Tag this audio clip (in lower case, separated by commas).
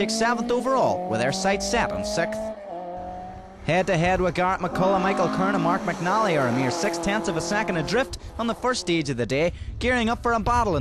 car, auto racing, speech, vehicle